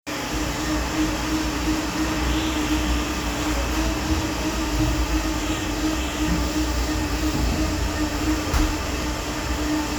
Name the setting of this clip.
cafe